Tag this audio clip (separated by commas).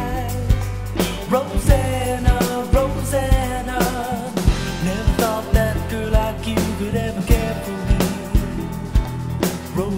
Drum kit, Drum, Snare drum, Rimshot, playing drum kit, Percussion, Bass drum